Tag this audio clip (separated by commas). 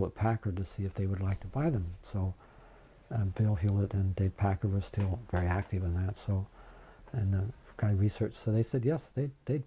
Speech